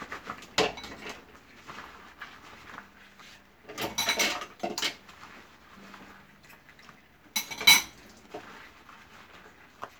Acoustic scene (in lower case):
kitchen